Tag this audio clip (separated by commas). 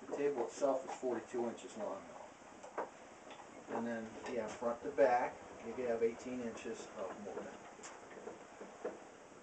Speech